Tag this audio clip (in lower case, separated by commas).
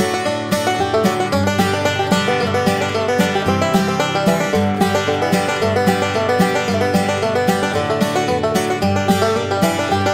music